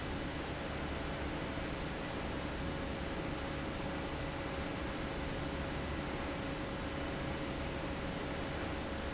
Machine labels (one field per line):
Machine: fan